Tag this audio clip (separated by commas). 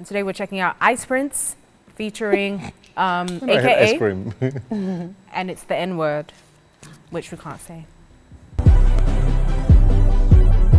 Speech, Music